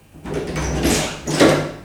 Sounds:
home sounds, door

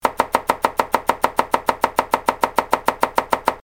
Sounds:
home sounds

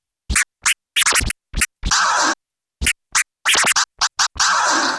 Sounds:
scratching (performance technique), music, musical instrument

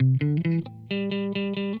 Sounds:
musical instrument, music, guitar, electric guitar, plucked string instrument

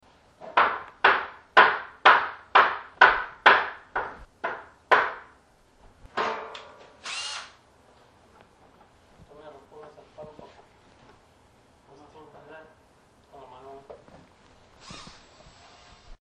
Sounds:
tools, power tool, drill, hammer

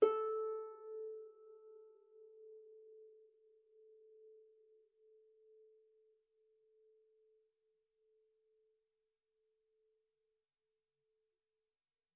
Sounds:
harp, musical instrument, music

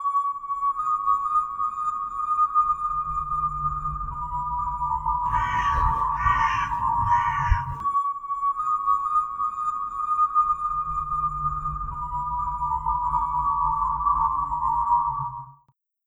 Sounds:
crow, animal, wild animals, bird

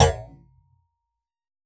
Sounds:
thump

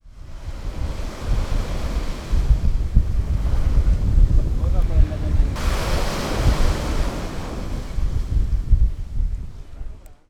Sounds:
water, ocean

